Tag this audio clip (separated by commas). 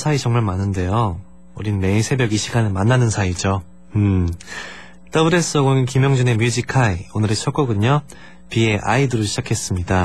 Speech